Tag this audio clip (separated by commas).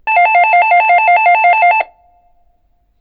Doorbell, Alarm, Door, home sounds